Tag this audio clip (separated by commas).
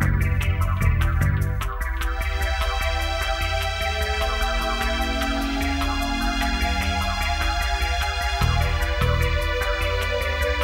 Music